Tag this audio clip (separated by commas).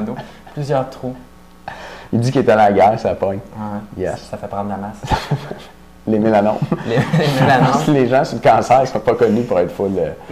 Speech